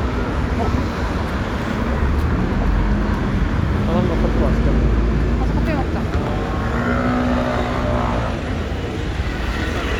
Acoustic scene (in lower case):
street